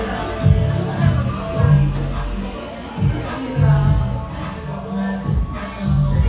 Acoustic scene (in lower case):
cafe